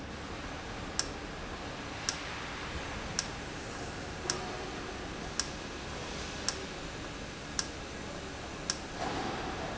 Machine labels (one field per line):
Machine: valve